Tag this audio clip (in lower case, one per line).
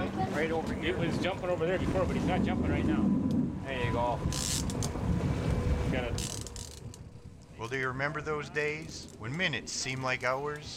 speech